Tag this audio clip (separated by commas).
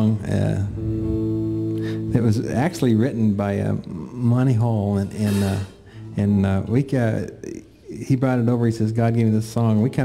Speech, Music